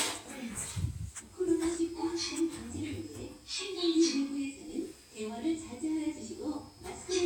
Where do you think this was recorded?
in an elevator